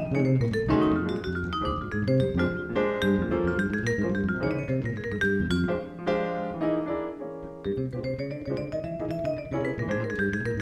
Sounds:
Marimba, Vibraphone, Music, Musical instrument, Percussion

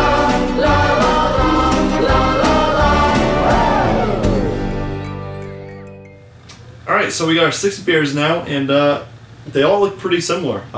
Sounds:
Gospel music

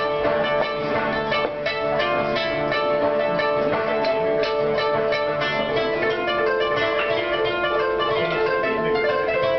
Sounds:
Music, Traditional music

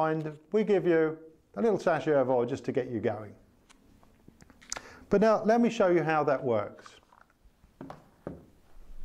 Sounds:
Speech

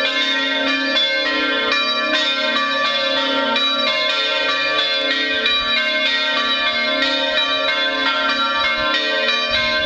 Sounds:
Music, Bell, Change ringing (campanology), Church bell

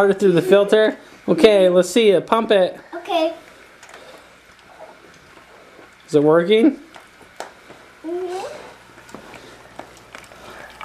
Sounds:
Speech, Stream

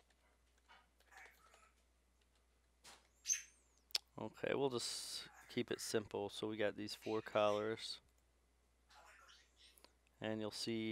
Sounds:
Speech, inside a small room

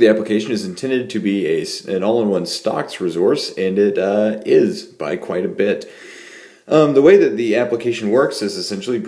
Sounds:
Speech

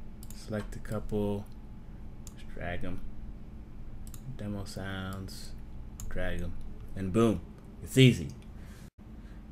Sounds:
Speech

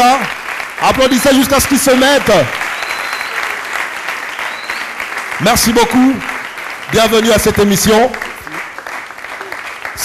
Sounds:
Speech

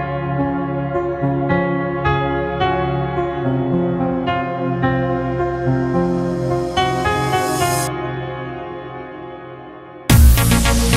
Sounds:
New-age music, Music

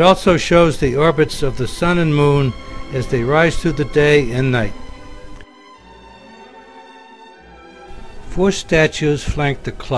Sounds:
Speech, Music

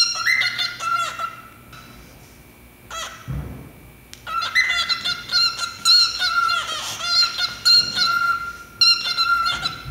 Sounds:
inside a small room, Bird

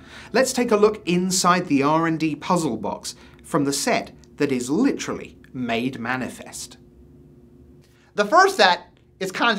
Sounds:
Speech

